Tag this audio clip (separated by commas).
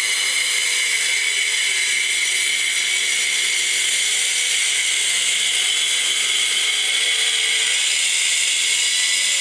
Power tool